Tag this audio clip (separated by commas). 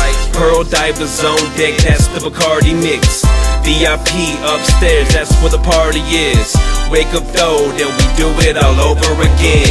Pop music, Music, Exciting music